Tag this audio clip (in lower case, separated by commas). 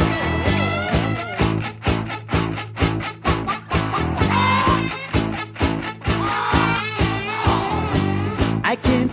music